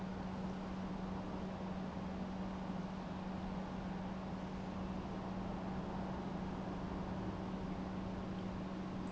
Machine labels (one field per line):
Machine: pump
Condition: normal